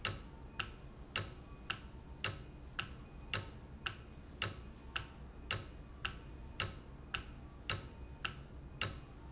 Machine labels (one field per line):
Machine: valve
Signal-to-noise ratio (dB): 6 dB